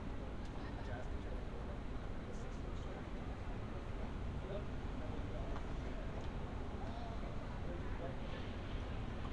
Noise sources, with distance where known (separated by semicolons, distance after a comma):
person or small group talking